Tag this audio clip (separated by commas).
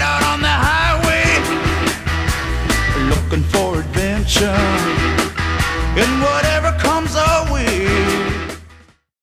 Music